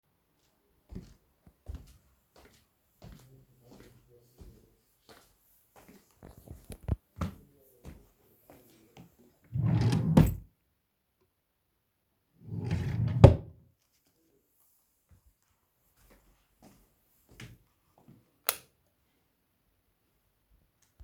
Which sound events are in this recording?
footsteps, wardrobe or drawer, light switch